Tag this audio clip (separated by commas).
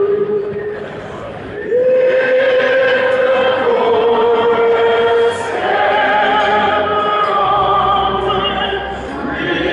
Music, Mantra